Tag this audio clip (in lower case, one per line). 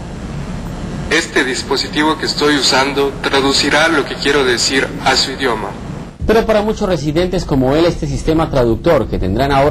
speech
male speech